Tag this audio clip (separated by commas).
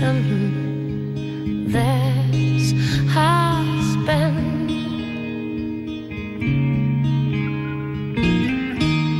Music, Independent music